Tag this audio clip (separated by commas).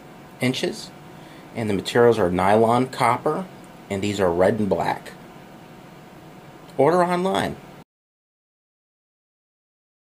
Speech